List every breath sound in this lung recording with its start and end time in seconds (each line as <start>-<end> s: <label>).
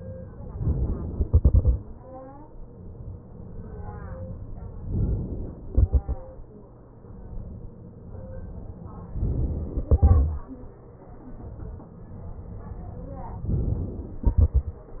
0.53-1.10 s: inhalation
1.10-1.92 s: exhalation
4.84-5.66 s: inhalation
5.66-6.59 s: exhalation
9.17-9.89 s: inhalation
9.89-10.96 s: exhalation
13.46-14.27 s: inhalation
14.27-14.95 s: exhalation